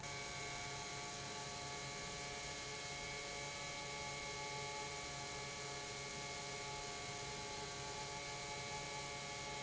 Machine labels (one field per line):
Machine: pump